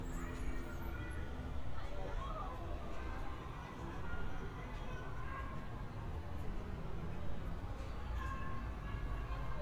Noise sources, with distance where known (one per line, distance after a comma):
person or small group talking
person or small group shouting, far